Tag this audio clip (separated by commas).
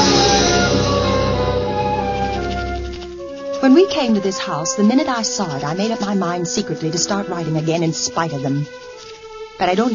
Music, Speech